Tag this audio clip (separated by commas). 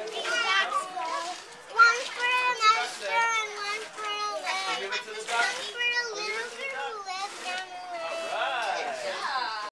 Speech